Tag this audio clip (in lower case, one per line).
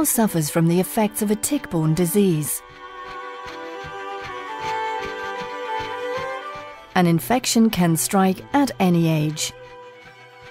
speech
music